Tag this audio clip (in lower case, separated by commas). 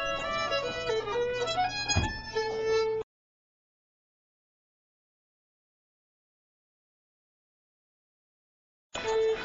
folk music, dance music, music